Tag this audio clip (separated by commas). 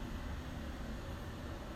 Wind